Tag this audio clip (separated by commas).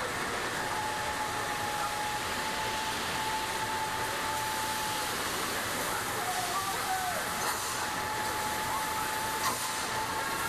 Speech, Vehicle, inside a large room or hall